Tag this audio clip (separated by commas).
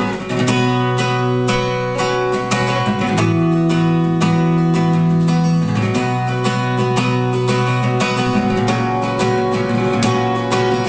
Guitar, Strum, Plucked string instrument, Musical instrument, Music, Acoustic guitar